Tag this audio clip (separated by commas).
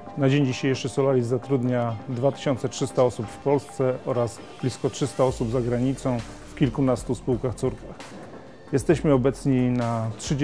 Speech, Music